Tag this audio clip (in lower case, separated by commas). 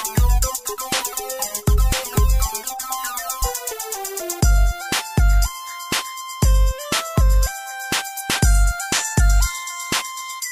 music